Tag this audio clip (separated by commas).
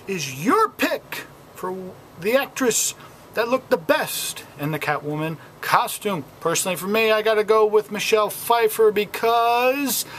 Speech